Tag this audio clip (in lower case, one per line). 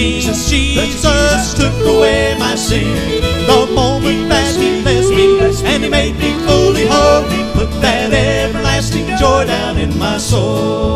choir
male singing
music